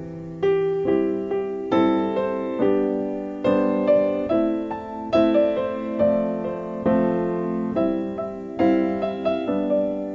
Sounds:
music

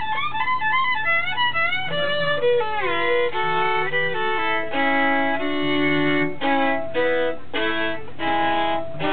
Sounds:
musical instrument, violin, music

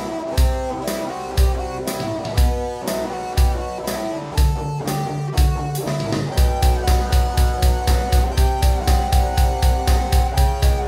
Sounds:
music

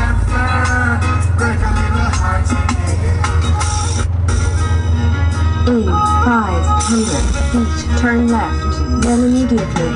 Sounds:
speech, music

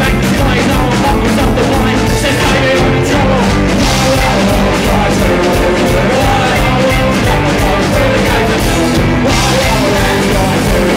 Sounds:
music

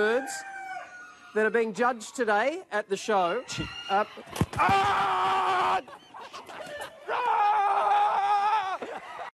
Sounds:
cluck, crowing, rooster, fowl

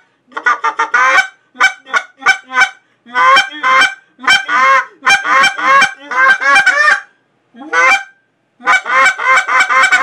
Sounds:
fowl, goose, honk

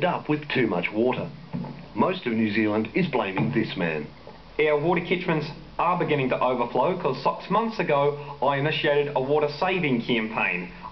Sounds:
speech

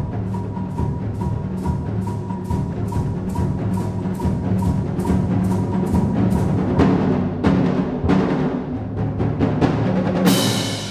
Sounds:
timpani, musical instrument, music, orchestra

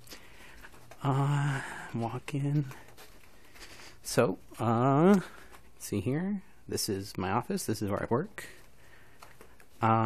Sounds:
speech

